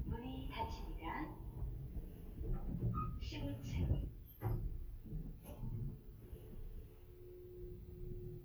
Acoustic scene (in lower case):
elevator